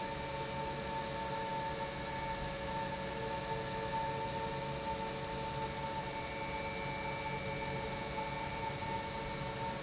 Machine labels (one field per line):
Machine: pump